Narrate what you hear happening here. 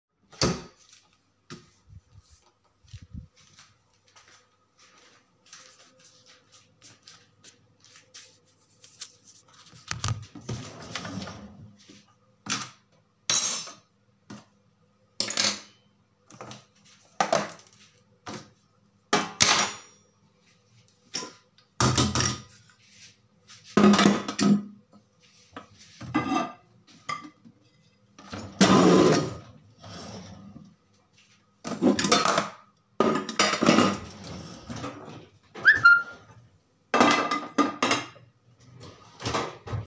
I opened the kitchen door, started keeping dishes into the cupboard.